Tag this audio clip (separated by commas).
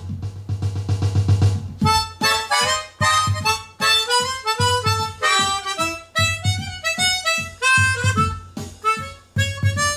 Wind instrument, Harmonica